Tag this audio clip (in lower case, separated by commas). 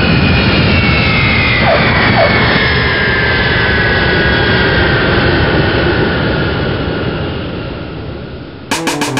music, airplane